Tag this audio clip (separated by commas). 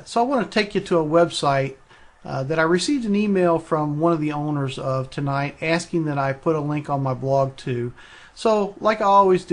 Speech